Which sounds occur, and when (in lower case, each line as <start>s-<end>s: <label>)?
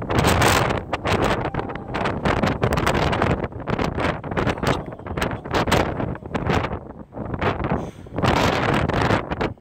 0.0s-9.6s: wind noise (microphone)
1.4s-1.9s: brief tone
7.7s-8.1s: breathing